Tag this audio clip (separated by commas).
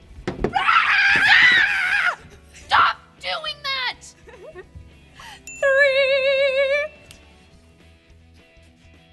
Speech, inside a large room or hall, Music